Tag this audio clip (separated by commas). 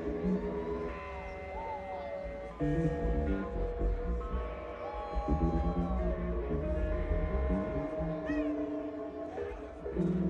Speech, Music